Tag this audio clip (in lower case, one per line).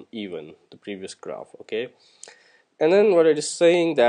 speech